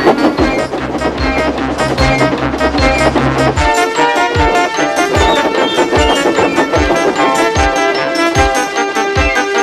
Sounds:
Music

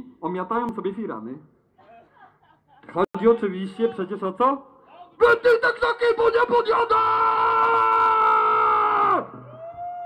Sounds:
Speech

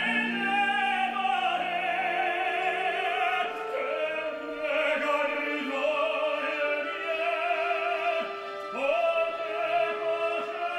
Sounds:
Male singing, Music

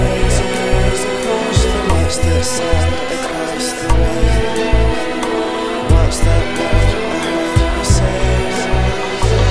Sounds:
Music

